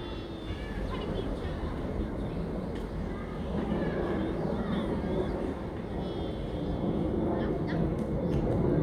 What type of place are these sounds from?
residential area